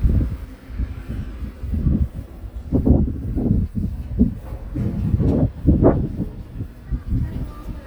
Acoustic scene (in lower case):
residential area